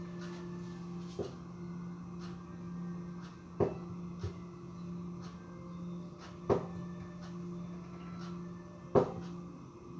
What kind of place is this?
kitchen